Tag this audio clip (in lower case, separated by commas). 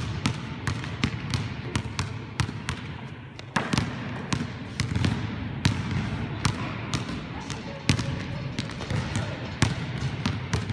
basketball bounce